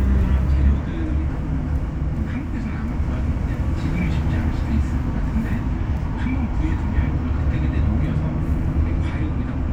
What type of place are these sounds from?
bus